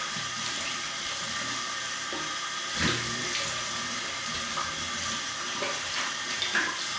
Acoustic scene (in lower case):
restroom